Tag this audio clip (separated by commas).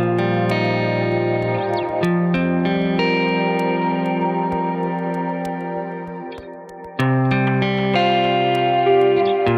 Distortion, Music